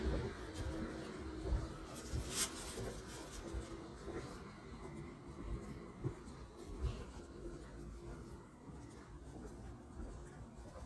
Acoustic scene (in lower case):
residential area